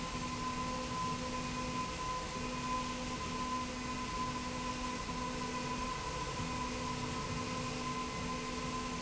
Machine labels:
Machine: slide rail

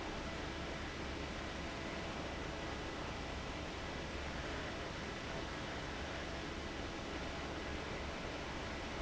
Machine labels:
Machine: fan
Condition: abnormal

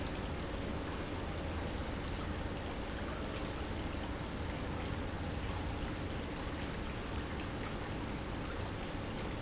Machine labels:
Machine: pump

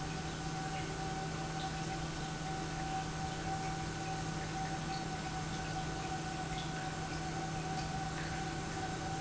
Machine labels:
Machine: pump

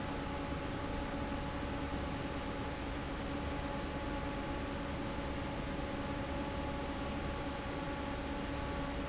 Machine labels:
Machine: fan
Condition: normal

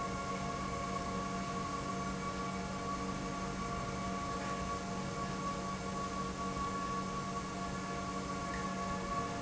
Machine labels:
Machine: pump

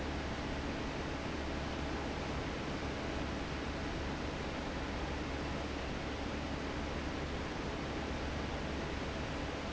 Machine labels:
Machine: fan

